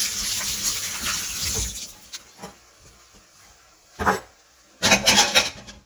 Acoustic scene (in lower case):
kitchen